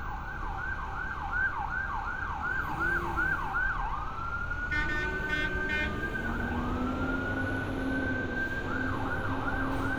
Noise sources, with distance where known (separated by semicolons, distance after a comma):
siren